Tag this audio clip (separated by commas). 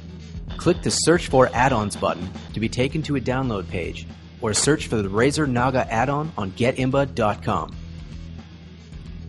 Music, Speech